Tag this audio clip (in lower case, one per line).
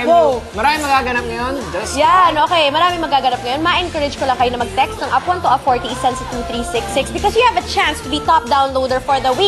music
speech